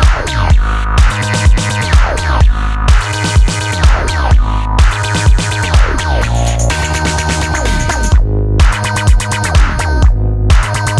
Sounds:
sampler
music

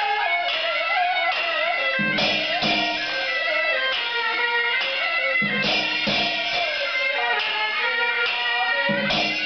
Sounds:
music
male singing

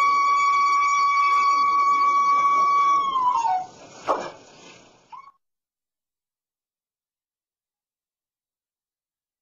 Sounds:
music

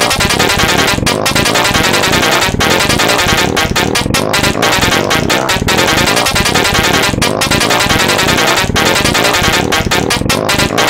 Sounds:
music

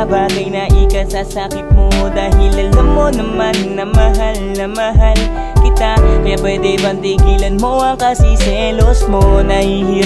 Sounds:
soul music
music

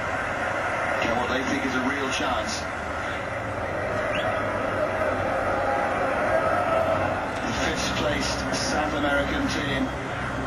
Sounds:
speech

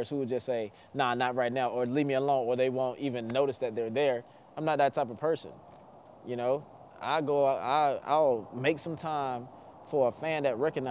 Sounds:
speech

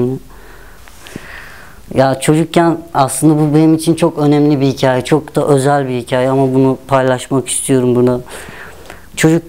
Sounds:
speech

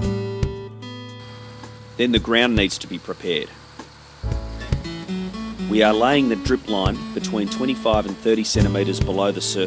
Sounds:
music
speech

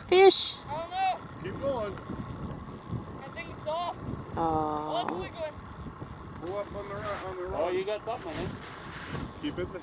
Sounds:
canoe
speech

